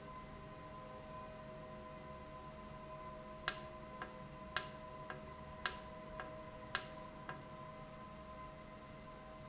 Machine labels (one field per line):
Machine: valve